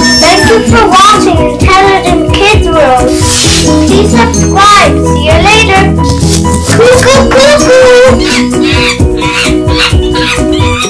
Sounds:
kid speaking, music, speech

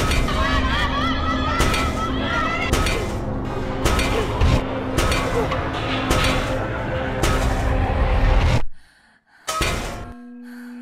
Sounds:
music, speech

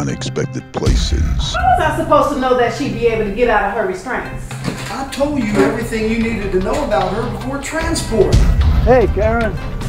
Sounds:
music, speech

